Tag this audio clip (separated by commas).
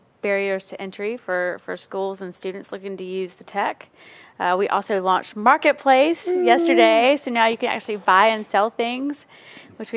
Speech